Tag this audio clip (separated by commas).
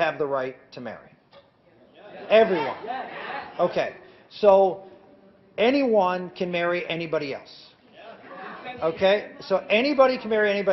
Narration, Speech